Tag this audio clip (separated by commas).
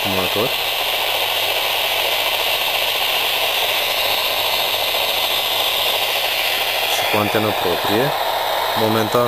Speech